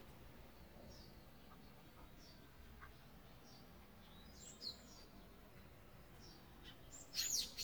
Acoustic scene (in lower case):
park